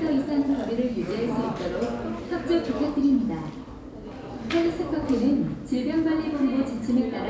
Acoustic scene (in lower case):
cafe